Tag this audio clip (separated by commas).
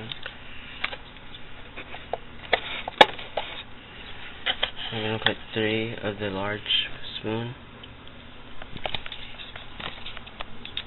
inside a small room, Speech